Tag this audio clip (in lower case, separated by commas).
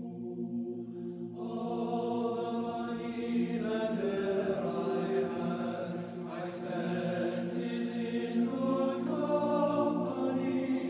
music